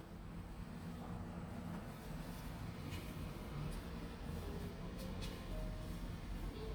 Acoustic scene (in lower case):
elevator